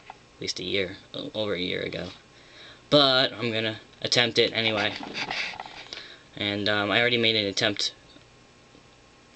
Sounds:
speech

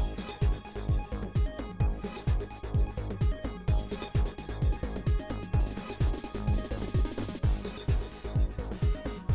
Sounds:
music

